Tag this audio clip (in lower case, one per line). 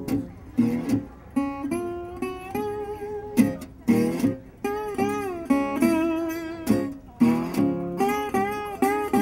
music
guitar
electric guitar
musical instrument